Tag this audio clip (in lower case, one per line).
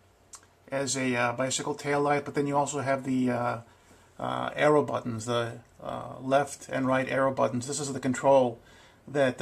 speech